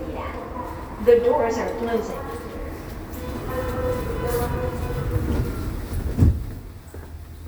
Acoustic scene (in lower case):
subway station